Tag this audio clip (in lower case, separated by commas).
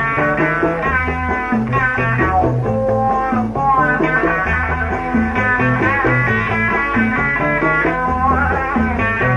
music